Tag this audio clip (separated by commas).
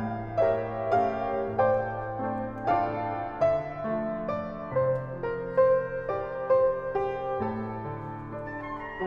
Music